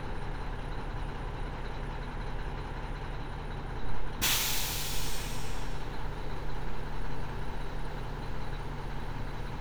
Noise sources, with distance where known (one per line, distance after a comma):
large-sounding engine